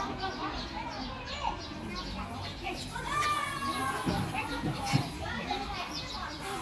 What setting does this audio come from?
park